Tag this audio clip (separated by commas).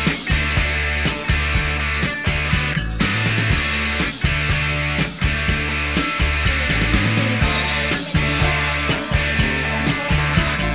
Music, Burst